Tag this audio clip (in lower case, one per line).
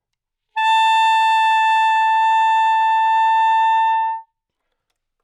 musical instrument
music
wind instrument